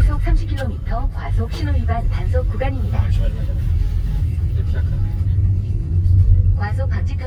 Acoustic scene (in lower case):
car